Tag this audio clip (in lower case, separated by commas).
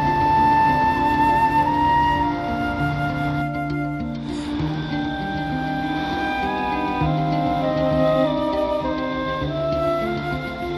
music